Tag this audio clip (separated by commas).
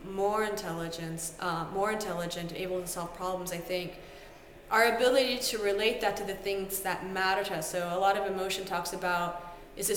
Speech